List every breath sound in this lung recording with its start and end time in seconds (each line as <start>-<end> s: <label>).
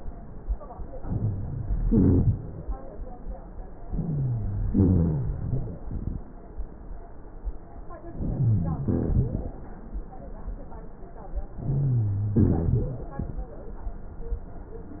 1.02-1.77 s: inhalation
1.82-2.39 s: exhalation
1.82-2.39 s: rhonchi
3.89-4.67 s: inhalation
3.89-4.67 s: wheeze
4.67-5.35 s: exhalation
4.67-5.35 s: rhonchi
8.18-8.86 s: inhalation
8.18-8.86 s: wheeze
8.84-9.53 s: exhalation
8.84-9.53 s: rhonchi
11.65-12.35 s: inhalation
11.65-12.35 s: wheeze
12.35-12.98 s: exhalation
12.35-12.98 s: rhonchi